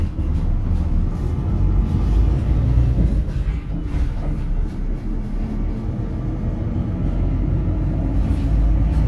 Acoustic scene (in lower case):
bus